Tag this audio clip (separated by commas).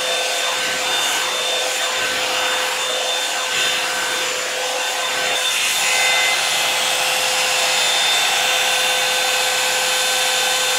hair dryer drying